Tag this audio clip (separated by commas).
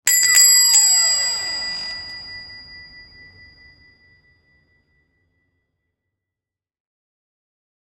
Bell, Squeak